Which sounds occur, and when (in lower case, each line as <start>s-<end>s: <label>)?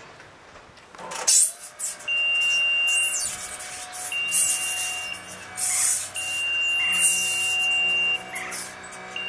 0.0s-0.3s: generic impact sounds
0.0s-9.2s: wind
0.5s-0.8s: generic impact sounds
0.9s-1.5s: generic impact sounds
0.9s-9.2s: mechanisms
2.0s-3.3s: beep
2.9s-3.4s: bird vocalization
4.1s-5.4s: beep
5.6s-6.1s: bird vocalization
6.1s-8.5s: beep
6.5s-7.2s: bird vocalization
8.3s-8.8s: bird vocalization